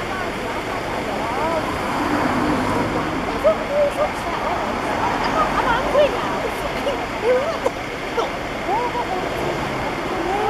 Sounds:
Speech

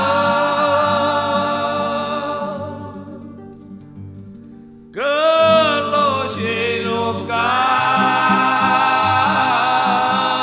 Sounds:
Music

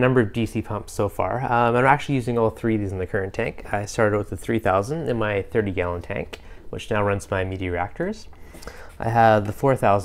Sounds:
Speech

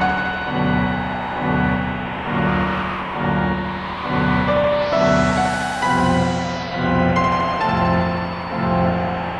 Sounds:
Music

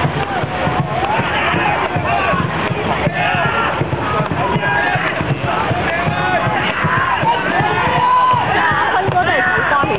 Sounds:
Speech

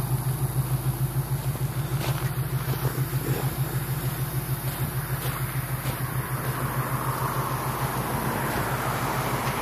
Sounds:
Vehicle, outside, urban or man-made, Car

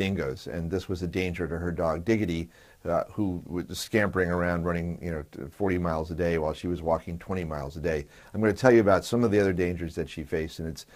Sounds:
Speech

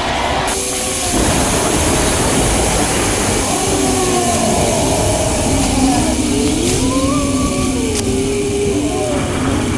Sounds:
inside a large room or hall

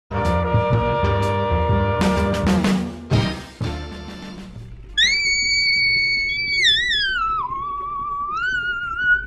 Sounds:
Music

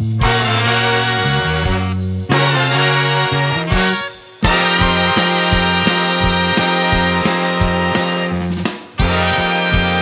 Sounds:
Music

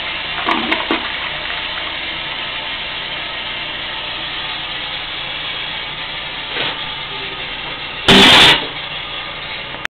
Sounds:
Toilet flush, toilet flushing

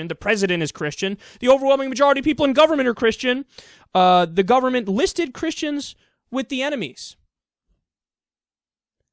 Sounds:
Speech, Silence

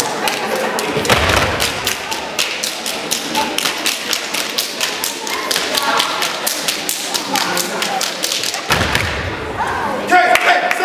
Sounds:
Speech, inside a large room or hall

